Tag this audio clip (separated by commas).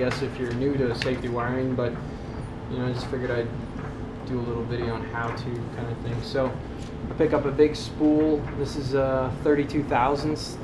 Speech